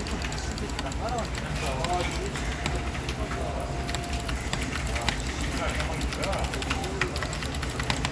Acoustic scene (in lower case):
crowded indoor space